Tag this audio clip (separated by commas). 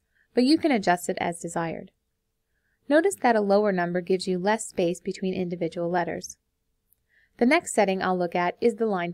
Speech